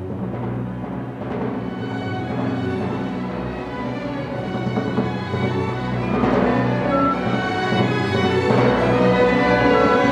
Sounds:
playing timpani

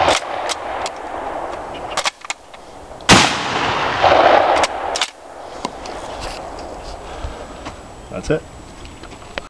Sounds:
speech

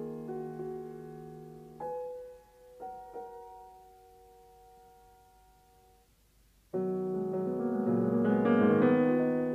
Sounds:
music

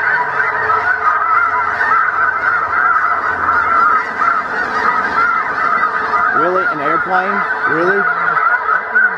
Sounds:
goose honking, honk, fowl, goose

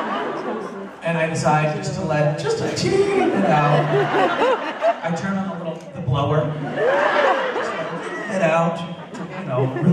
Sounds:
speech, man speaking

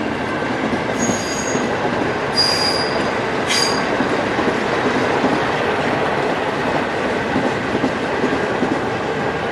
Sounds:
train wagon, rail transport, clickety-clack, train wheels squealing, train

